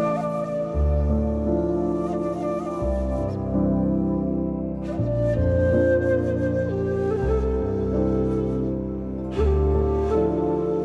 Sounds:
new-age music

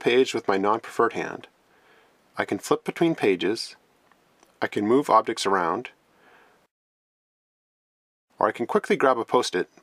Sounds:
speech

